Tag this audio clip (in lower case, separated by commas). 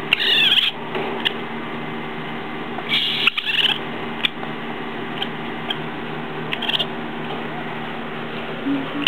animal